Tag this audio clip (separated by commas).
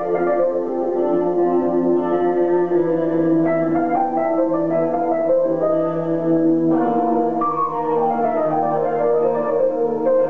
Music